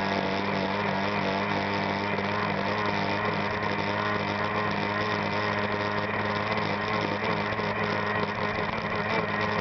Motor boat speeding by